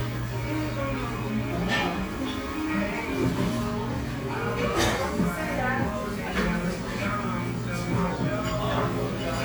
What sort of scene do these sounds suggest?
restaurant